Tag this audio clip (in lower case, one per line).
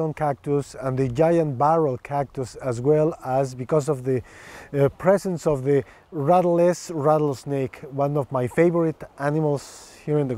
speech